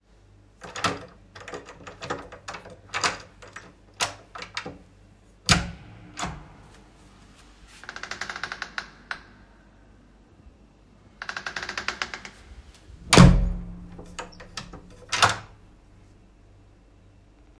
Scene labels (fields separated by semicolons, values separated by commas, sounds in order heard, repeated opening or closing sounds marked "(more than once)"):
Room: hallway; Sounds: door